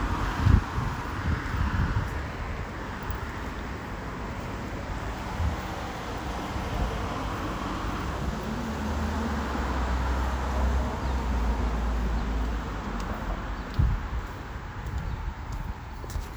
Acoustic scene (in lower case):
street